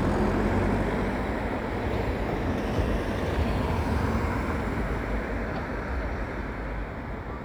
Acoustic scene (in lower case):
residential area